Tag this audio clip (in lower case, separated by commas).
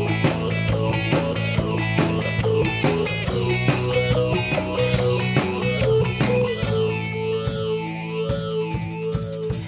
guitar, music, plucked string instrument, musical instrument